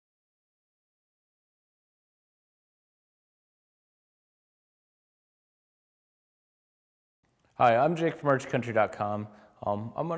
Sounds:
speech

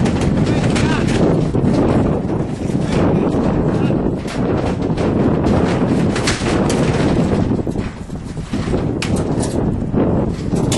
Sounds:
speech

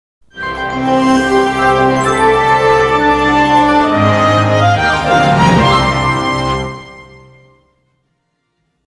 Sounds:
music, television

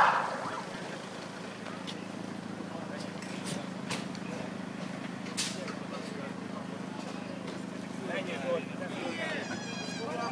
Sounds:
vehicle, speech

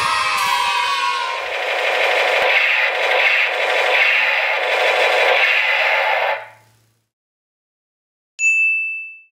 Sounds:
children shouting, crowd

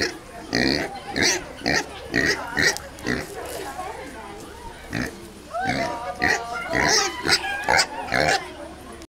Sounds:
speech, oink

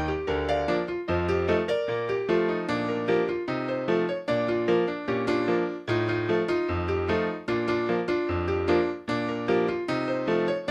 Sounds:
music, video game music

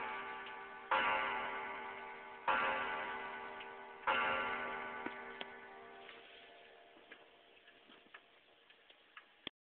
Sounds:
tick-tock, tick

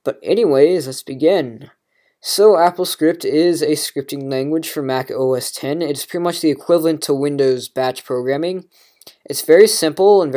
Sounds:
speech

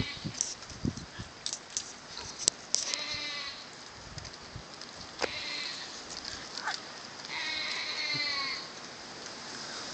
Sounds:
livestock

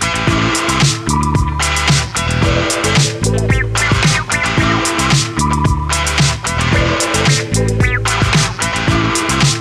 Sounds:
music

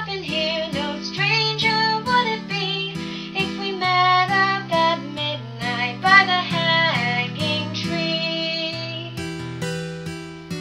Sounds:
lullaby, music

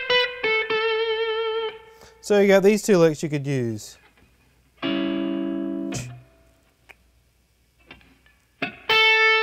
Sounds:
music, inside a small room, speech, plucked string instrument, guitar, musical instrument

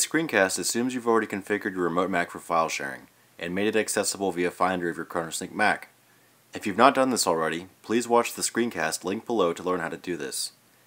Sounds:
speech

